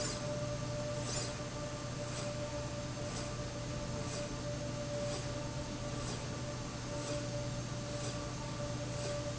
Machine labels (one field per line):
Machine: slide rail